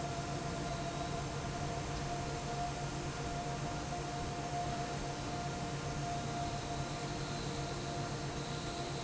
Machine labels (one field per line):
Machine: fan